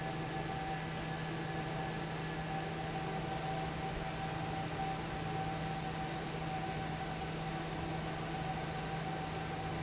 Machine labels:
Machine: fan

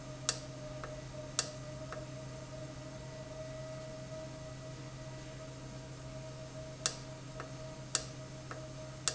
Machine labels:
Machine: valve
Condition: normal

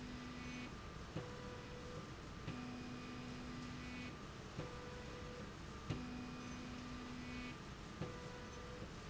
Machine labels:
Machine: slide rail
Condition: normal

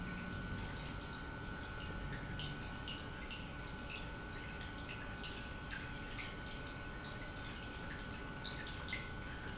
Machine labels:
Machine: pump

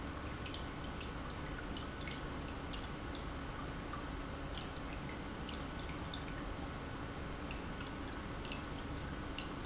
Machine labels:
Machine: pump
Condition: normal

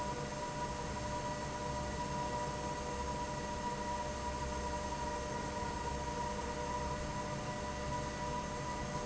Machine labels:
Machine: fan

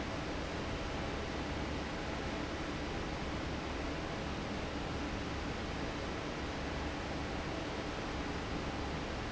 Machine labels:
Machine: fan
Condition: normal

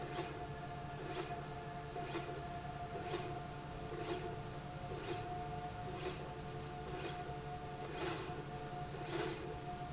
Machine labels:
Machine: slide rail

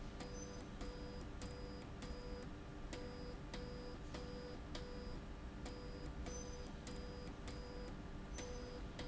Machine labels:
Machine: slide rail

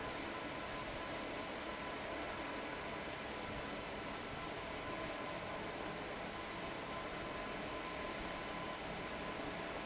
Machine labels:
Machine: fan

